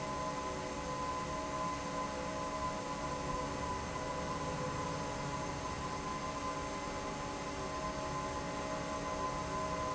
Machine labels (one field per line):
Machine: fan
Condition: normal